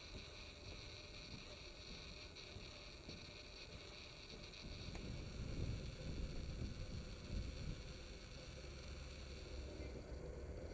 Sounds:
outside, rural or natural

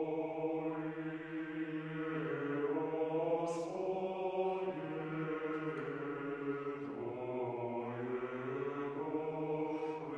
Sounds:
mantra

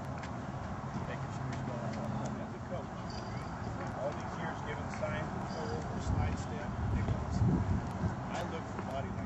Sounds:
speech

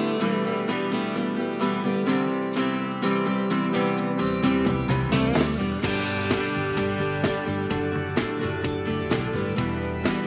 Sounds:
music

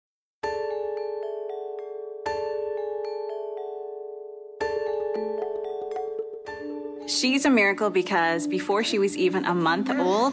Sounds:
music, glockenspiel, speech

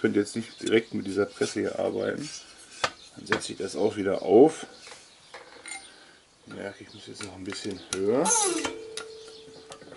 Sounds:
speech

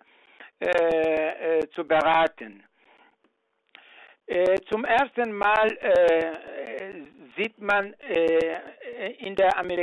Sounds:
speech

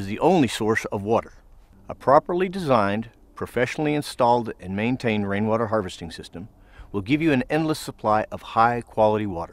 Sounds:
speech

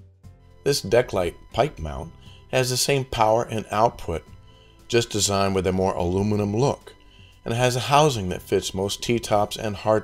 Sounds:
speech, music

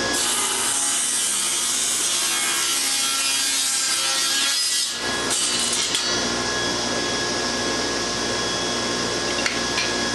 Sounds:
wood, rub, sawing

